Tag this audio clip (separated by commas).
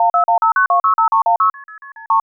Alarm, Telephone